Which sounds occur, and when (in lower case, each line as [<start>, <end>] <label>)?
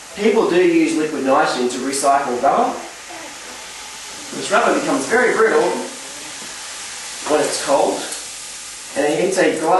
[0.00, 9.75] background noise
[0.00, 9.75] water
[3.08, 3.65] speech
[6.14, 6.51] human voice
[8.99, 9.75] male speech